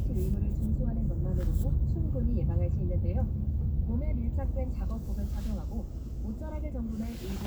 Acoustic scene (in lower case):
car